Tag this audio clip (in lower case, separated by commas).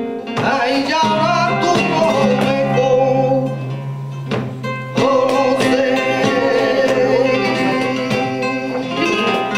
plucked string instrument, guitar, musical instrument, music